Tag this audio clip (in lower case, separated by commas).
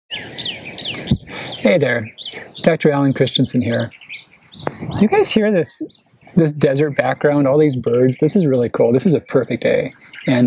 bird, tweet, speech, bird vocalization